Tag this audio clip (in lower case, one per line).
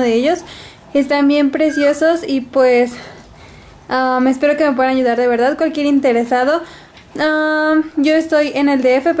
speech